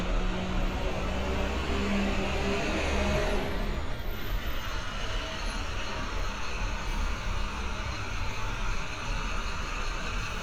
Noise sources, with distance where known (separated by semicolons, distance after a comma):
large-sounding engine, near